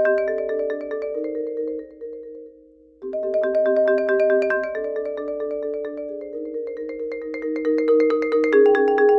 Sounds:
playing marimba
music
xylophone

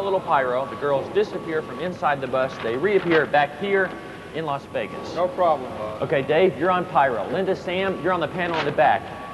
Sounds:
speech

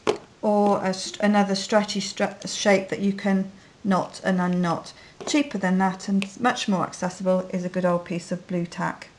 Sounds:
speech

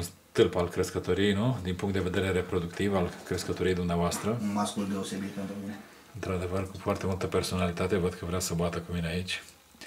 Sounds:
inside a small room
speech

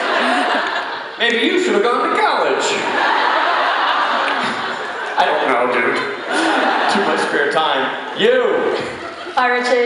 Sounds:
speech

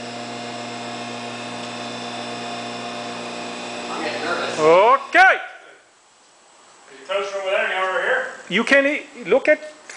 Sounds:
speech

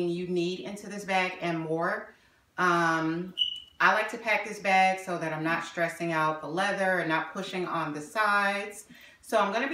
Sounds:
speech

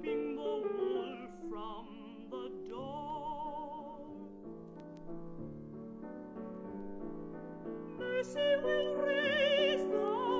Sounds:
lullaby
music

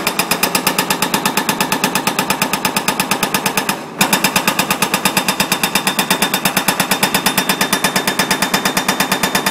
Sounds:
jackhammer

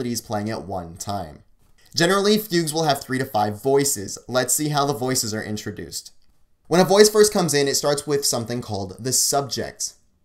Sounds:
speech

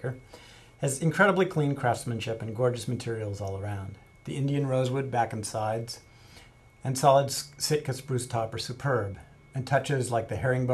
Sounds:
speech

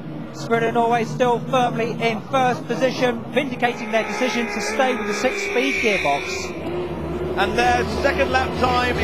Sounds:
motorboat
vehicle
speech

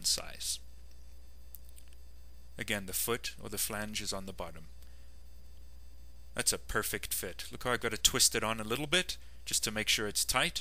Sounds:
speech

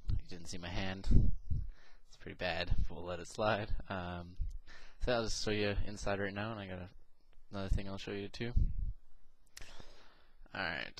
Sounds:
speech

